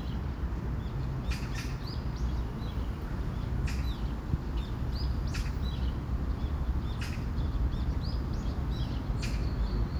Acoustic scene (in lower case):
park